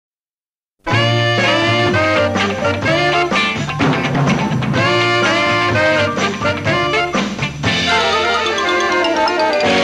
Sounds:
Music, Bell

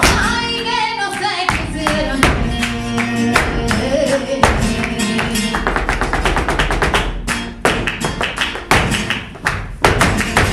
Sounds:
Music of Latin America, Singing, Music, Tap, Flamenco

